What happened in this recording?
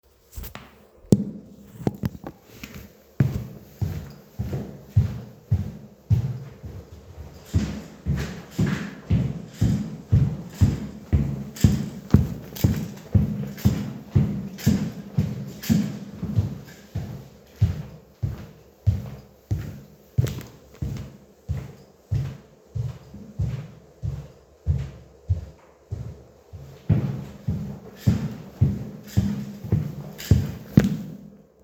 In the morning rush; people are walking in both directions.